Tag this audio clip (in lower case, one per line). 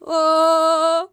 female singing
human voice
singing